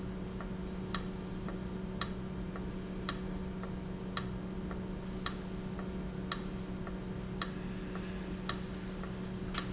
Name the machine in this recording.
valve